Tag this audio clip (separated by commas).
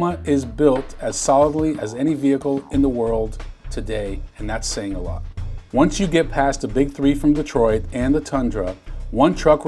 Speech